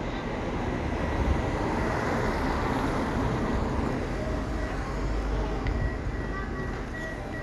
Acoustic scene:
residential area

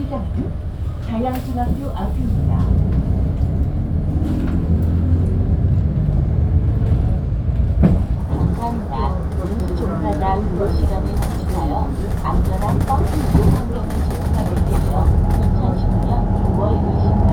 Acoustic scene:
bus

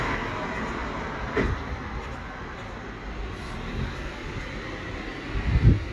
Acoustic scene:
residential area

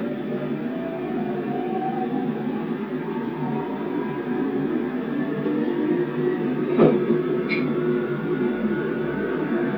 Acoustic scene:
subway train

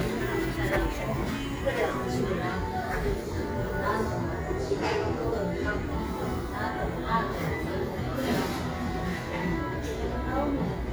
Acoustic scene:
cafe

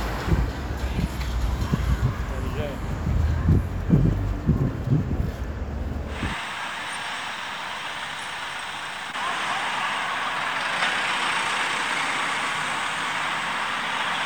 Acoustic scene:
street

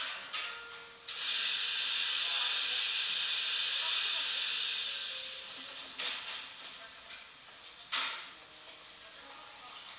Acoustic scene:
cafe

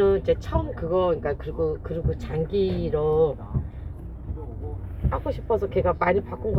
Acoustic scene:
car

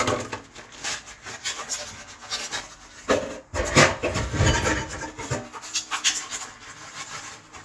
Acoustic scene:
kitchen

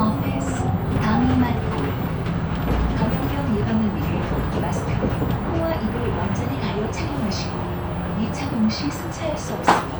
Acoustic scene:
bus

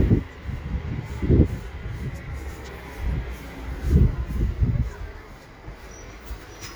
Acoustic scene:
residential area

